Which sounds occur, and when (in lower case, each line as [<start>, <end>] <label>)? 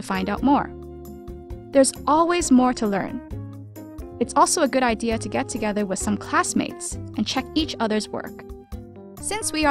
[0.00, 0.67] female speech
[0.00, 9.70] music
[1.73, 1.98] female speech
[1.92, 2.00] tick
[2.08, 3.16] female speech
[4.19, 7.00] female speech
[7.16, 8.30] female speech
[9.19, 9.70] female speech